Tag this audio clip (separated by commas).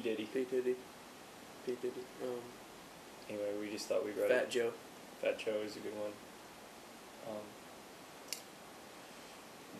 Speech